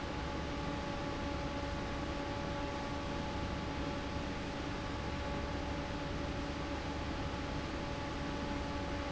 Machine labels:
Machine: fan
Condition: normal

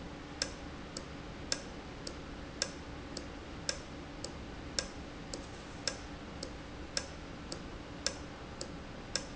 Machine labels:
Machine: valve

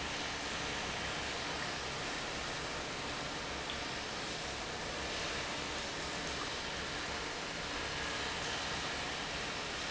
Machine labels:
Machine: pump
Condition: normal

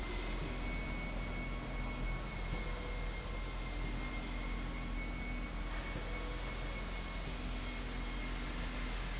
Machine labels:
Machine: slide rail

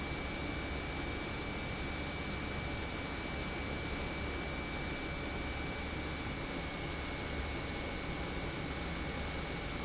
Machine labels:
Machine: pump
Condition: normal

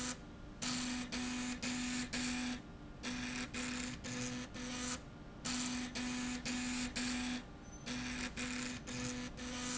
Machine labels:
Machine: slide rail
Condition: abnormal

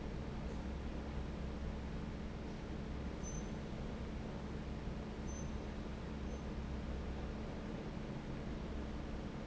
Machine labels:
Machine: fan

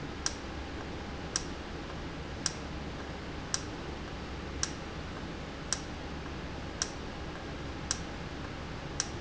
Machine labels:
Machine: valve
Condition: normal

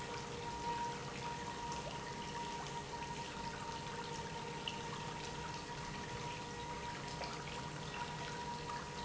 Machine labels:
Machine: pump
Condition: normal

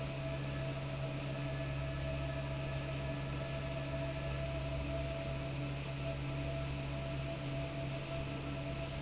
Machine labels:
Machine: fan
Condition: normal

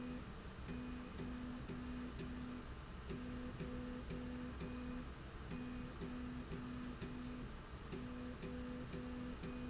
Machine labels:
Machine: slide rail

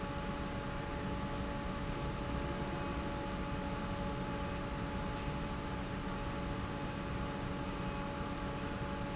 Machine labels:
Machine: fan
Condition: normal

